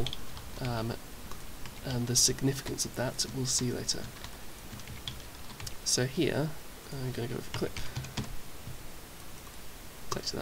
A person talking and typing and clicking noises